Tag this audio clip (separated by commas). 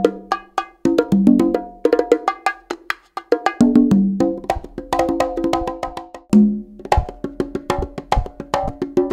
Wood block, Music